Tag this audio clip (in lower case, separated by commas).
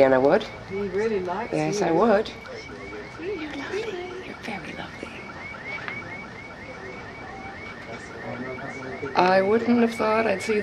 speech